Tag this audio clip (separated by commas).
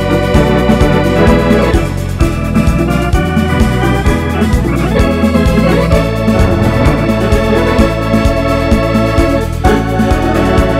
playing electronic organ